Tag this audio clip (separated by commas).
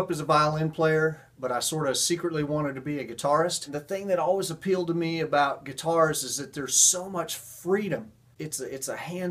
Speech